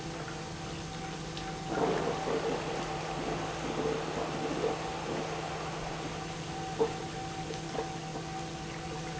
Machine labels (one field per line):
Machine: pump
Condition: abnormal